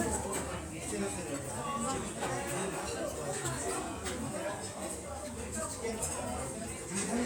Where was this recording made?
in a restaurant